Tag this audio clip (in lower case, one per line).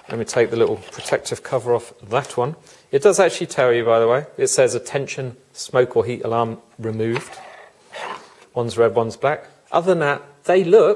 speech